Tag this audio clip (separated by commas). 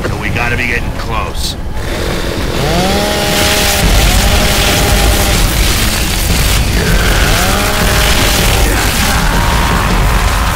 Speech